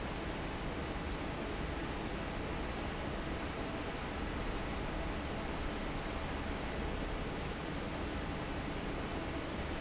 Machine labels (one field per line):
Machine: fan